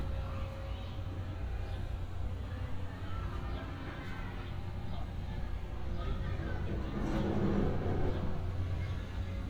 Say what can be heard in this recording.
person or small group shouting